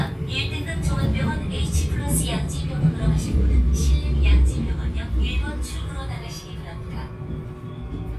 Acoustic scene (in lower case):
subway train